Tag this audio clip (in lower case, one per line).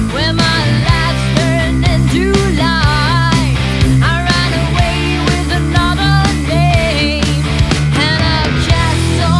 blues
music